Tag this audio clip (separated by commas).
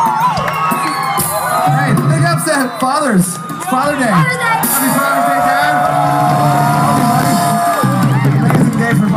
Speech, Whoop, Music